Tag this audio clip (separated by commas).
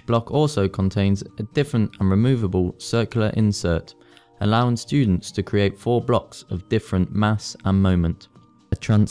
Speech